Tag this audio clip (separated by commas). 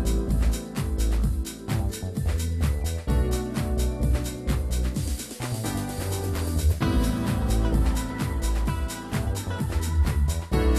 Music